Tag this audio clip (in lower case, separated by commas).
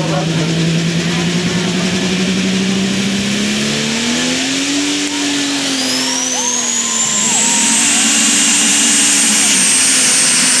speech, truck, vehicle